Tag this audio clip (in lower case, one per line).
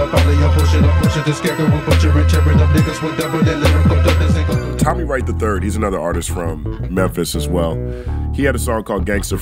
rapping